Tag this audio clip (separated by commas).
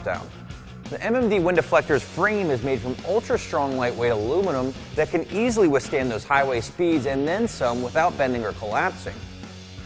Music, Speech